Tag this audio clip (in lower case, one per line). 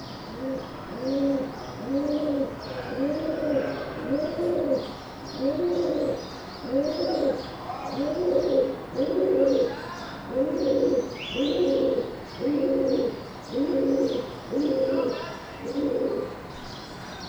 animal
bird
wild animals